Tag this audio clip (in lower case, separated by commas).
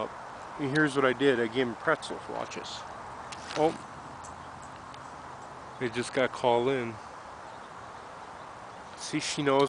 speech